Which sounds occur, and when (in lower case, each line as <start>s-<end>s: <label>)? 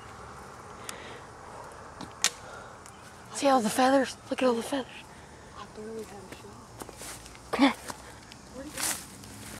0.0s-9.5s: wind
0.7s-0.7s: tick
0.8s-0.9s: tick
1.9s-2.0s: generic impact sounds
2.2s-2.3s: generic impact sounds
2.8s-3.2s: bird vocalization
2.8s-2.9s: tick
3.3s-4.1s: woman speaking
4.0s-4.3s: bird vocalization
4.2s-4.9s: woman speaking
5.5s-7.0s: woman speaking
5.9s-6.1s: footsteps
6.3s-6.4s: footsteps
6.6s-7.0s: bird vocalization
6.8s-6.8s: footsteps
6.9s-7.1s: footsteps
7.4s-8.1s: woman speaking
7.8s-8.2s: bird vocalization
7.8s-7.9s: footsteps
8.2s-8.4s: footsteps
8.4s-9.0s: woman speaking
8.7s-8.9s: footsteps
9.1s-9.5s: motor vehicle (road)